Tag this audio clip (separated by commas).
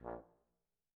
Brass instrument, Music, Musical instrument